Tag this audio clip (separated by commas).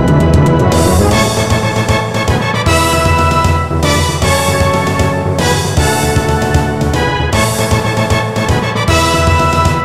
Music